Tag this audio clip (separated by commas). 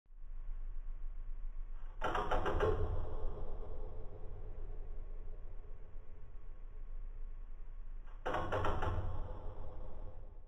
Tap